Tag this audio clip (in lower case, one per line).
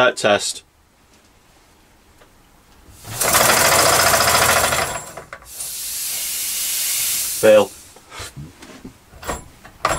speech